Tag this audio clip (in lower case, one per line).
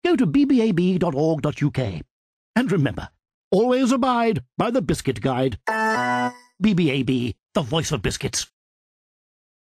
music
speech